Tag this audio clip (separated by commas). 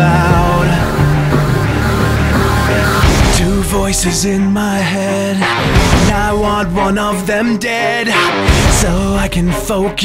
Music